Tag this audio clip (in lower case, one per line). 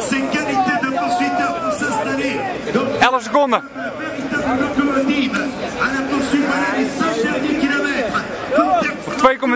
speech